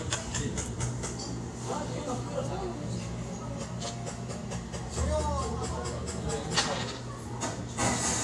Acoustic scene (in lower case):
cafe